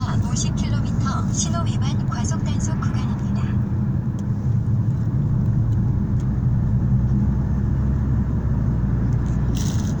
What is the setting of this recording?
car